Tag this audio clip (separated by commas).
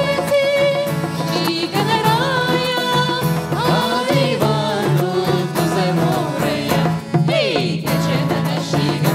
Music, Traditional music